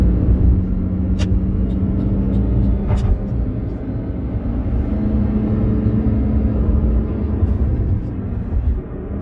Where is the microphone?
in a car